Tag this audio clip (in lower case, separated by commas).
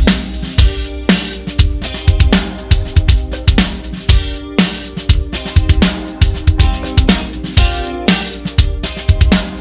playing snare drum